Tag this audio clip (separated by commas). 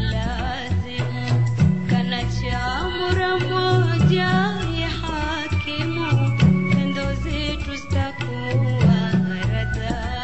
Female singing, Music